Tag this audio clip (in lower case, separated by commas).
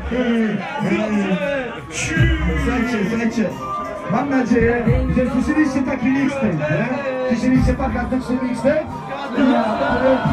speech